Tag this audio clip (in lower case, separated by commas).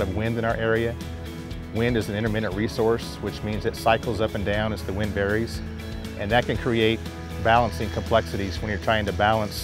speech, music